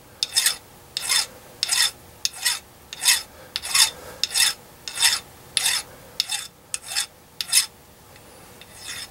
Someone sharpens a metal piece